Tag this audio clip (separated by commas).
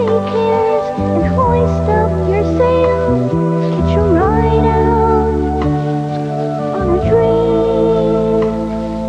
Lullaby, Music